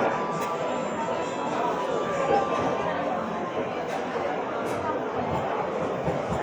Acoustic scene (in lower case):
cafe